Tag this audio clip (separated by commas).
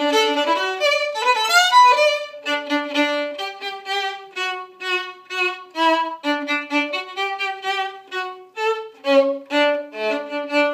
Violin, Bowed string instrument